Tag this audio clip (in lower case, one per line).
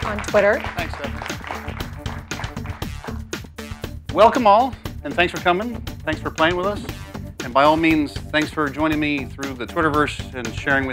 music
speech